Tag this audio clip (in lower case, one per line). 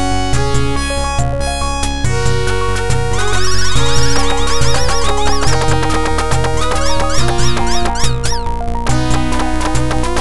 music